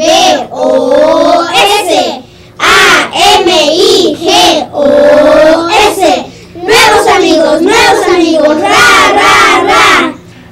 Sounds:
speech

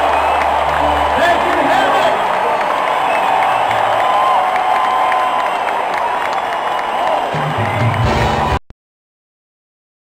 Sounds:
speech, music

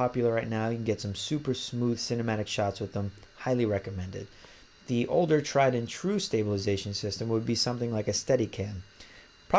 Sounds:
speech

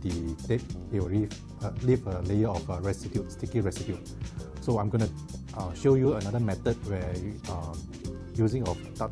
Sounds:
music, speech

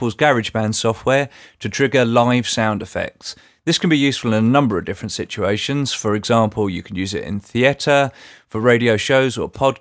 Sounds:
speech

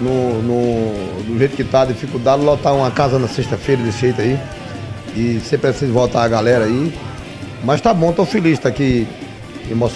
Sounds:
music, speech

